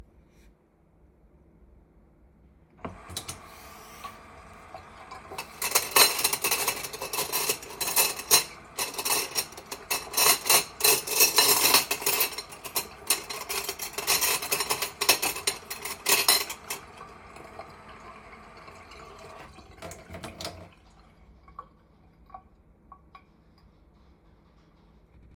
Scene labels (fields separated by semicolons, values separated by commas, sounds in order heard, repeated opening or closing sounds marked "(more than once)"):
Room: kitchen; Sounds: running water, cutlery and dishes